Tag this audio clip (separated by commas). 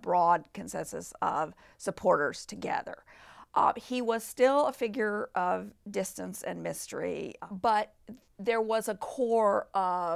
Speech